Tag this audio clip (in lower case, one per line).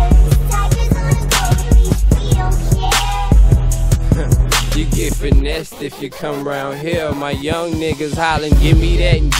music
disco